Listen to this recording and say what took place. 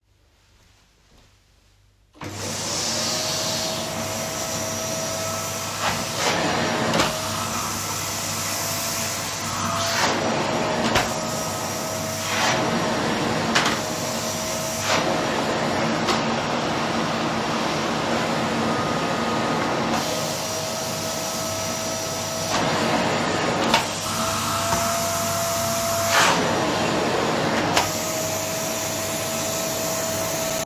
I recorded this scene while moving with the phone in the hallway during vacuum cleaning. The vacuum cleaner is the dominant target sound throughout the scene. The recording is continuous and clearly captures the event.